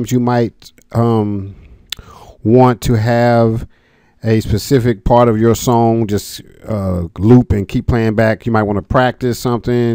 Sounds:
speech

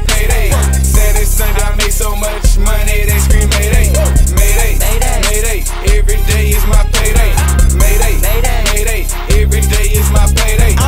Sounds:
music

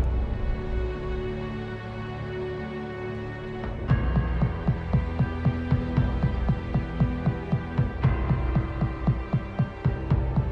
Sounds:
music

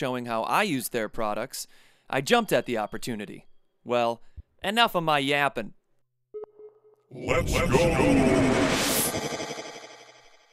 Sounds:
music
speech

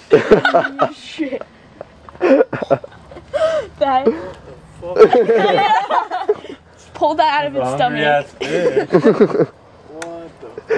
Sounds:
speech

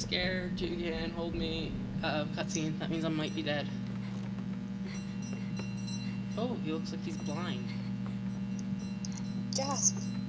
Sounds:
speech

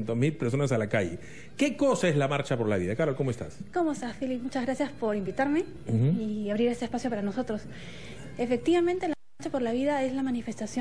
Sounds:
music
speech

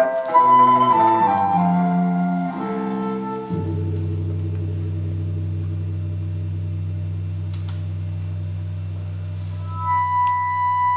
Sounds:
classical music
music

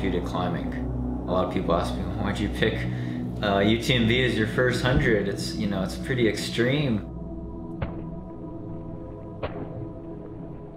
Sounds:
speech
music

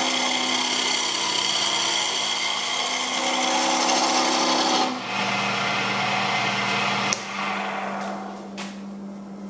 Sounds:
tools

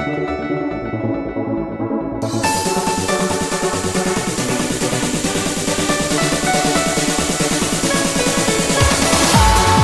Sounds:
music
trance music

